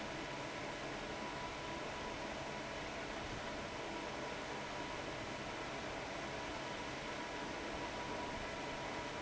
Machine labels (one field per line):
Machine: fan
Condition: abnormal